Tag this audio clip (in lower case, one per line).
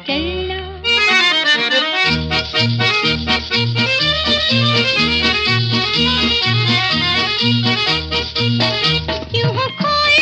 music of bollywood
music